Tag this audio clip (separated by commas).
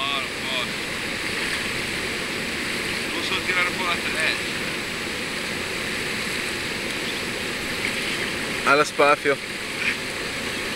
Speech